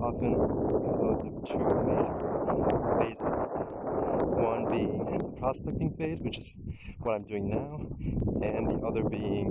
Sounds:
speech

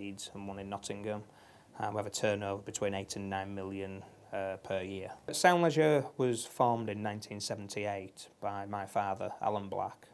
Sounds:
speech

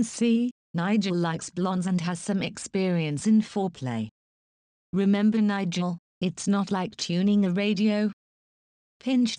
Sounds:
speech synthesizer

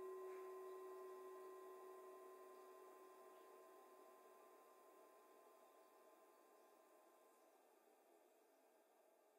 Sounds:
music, singing bowl

